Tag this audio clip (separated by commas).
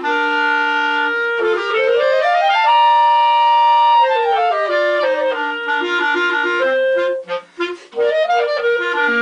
playing clarinet, Clarinet